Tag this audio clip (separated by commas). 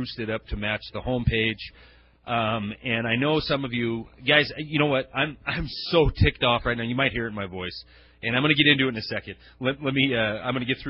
Speech